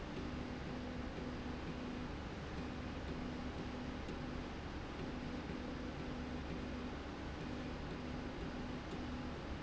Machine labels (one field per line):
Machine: slide rail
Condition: normal